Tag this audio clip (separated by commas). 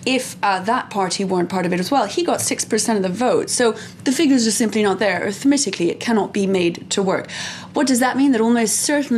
Speech